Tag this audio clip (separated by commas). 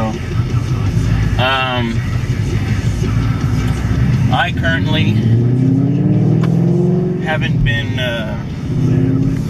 Vehicle, Motor vehicle (road), Car, Speech, Music